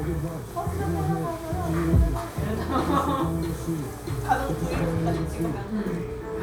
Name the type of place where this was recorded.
cafe